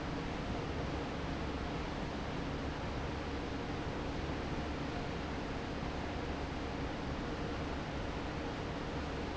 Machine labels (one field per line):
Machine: fan